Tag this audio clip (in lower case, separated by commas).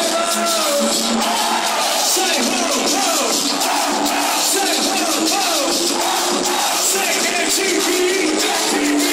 music, exciting music